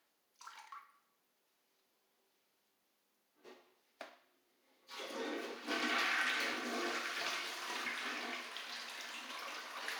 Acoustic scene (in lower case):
restroom